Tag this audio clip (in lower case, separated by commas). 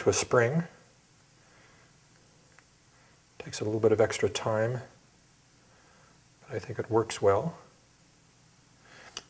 dishes, pots and pans, cutlery, eating with cutlery